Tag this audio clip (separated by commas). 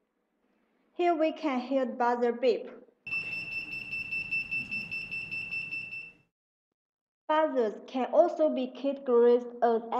Speech, Alarm